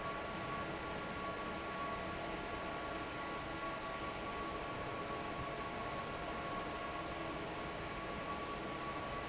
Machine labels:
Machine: fan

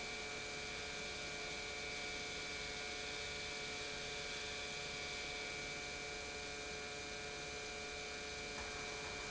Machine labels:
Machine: pump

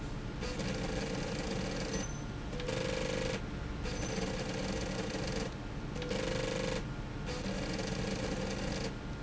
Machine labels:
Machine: slide rail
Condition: abnormal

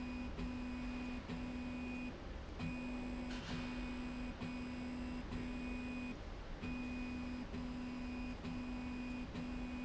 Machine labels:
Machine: slide rail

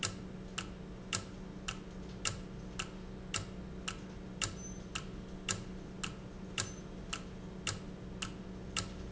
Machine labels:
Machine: valve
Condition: normal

